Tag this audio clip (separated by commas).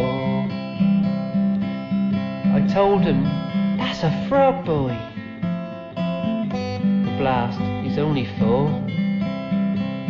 Speech, Music